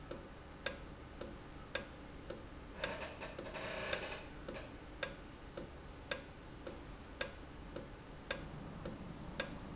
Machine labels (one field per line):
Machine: valve